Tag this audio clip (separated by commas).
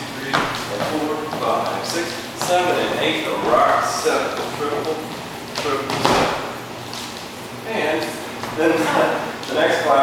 Speech